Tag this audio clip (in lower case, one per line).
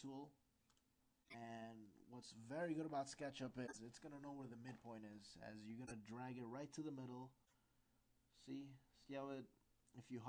speech